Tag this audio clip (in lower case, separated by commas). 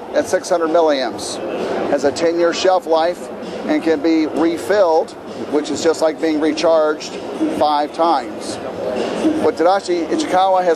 speech